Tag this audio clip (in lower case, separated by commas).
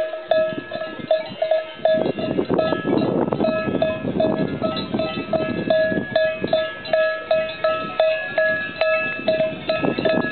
cattle